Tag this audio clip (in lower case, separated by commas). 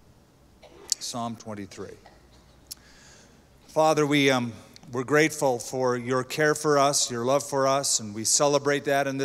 speech